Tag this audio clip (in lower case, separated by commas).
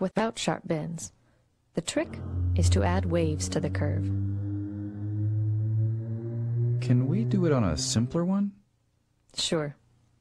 speech